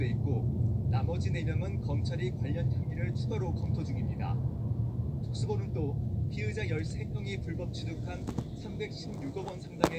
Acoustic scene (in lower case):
car